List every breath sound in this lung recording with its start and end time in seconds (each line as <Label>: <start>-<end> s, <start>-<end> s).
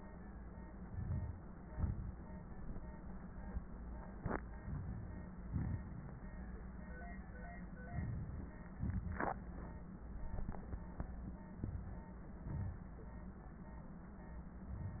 Inhalation: 0.81-1.57 s, 4.60-5.38 s, 7.89-8.72 s, 11.47-12.27 s
Exhalation: 1.58-2.53 s, 5.36-6.20 s, 8.74-9.49 s, 12.27-12.92 s
Wheeze: 5.76-6.20 s
Crackles: 0.78-1.56 s, 4.58-5.34 s, 7.89-8.72 s, 8.74-9.49 s, 12.27-12.92 s